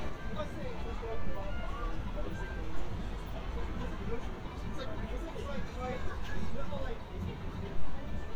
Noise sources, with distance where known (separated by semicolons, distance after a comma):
music from a fixed source; music from an unclear source; person or small group talking, near